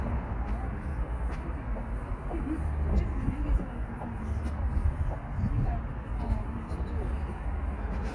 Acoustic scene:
residential area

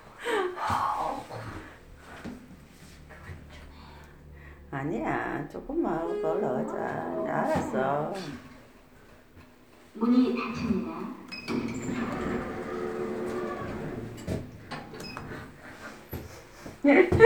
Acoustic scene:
elevator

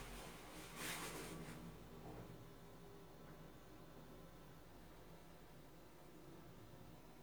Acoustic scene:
elevator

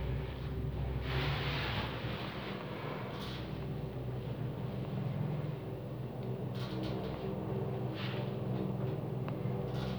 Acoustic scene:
elevator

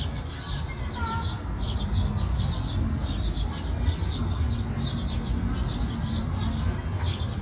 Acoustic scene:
park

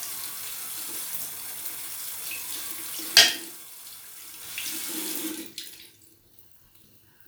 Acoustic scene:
restroom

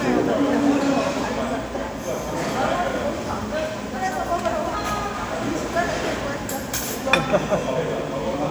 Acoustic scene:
restaurant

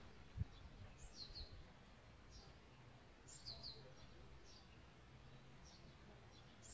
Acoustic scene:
park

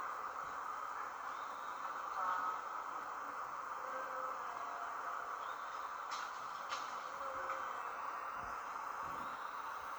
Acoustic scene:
park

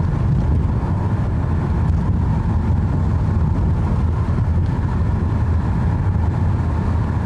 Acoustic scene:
car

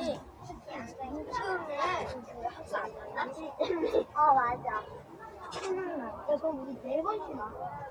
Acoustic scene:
residential area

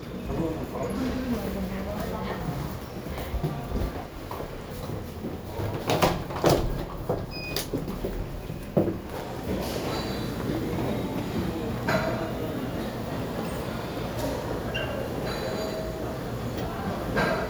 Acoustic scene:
elevator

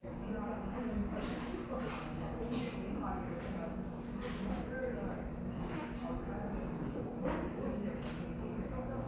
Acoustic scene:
cafe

